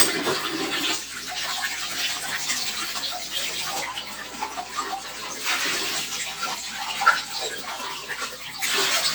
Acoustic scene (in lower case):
kitchen